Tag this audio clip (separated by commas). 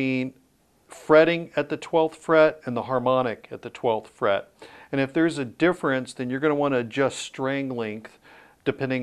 Speech